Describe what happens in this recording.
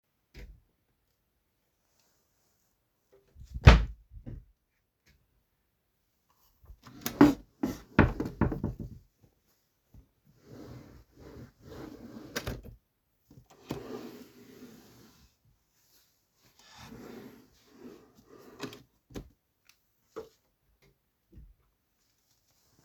The door of the wardrobe opened(hit by the wall). i opened the drawer to check something